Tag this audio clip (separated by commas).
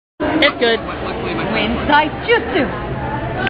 Speech